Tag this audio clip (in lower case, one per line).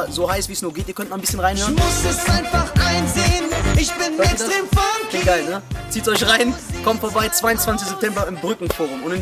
music
speech